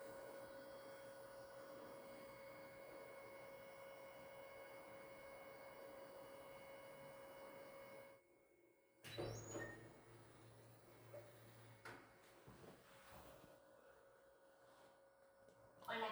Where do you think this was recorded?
in an elevator